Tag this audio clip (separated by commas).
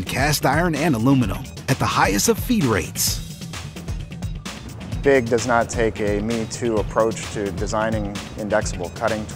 Speech, Music